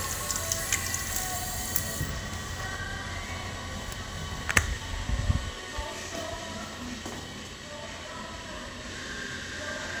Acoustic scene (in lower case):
restroom